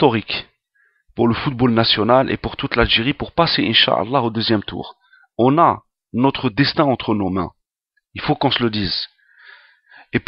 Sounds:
speech

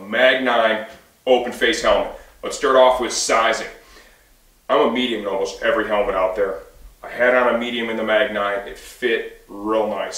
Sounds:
speech

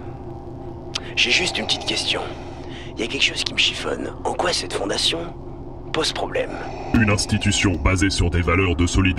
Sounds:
speech

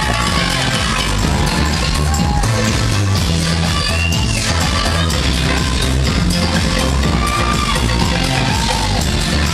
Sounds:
music

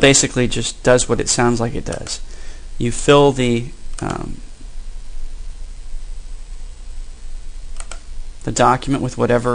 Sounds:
speech

